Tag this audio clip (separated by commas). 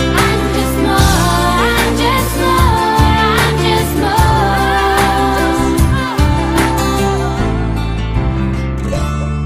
outside, urban or man-made, Music